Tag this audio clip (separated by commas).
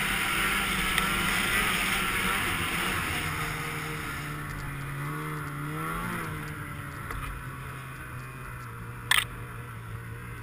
driving snowmobile